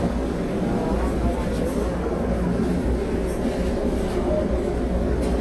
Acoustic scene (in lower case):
subway train